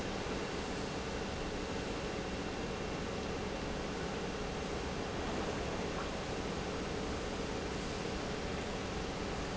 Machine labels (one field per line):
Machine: pump